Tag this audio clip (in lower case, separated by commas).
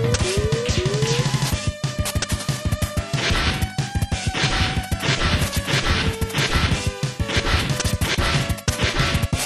music